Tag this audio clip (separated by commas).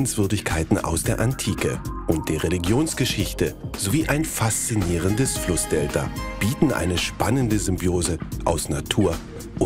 Music, Speech